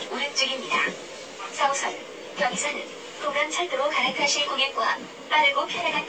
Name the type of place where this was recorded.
subway train